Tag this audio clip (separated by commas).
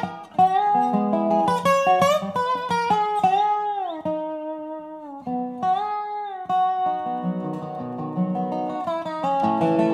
Plucked string instrument, Acoustic guitar, Zither